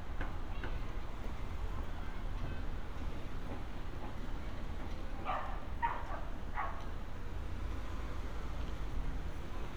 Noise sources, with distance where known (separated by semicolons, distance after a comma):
engine of unclear size; person or small group talking, far; dog barking or whining